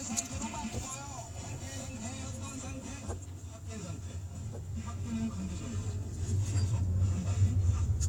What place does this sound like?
car